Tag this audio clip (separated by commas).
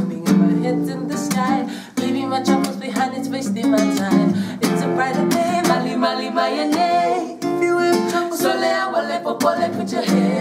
Music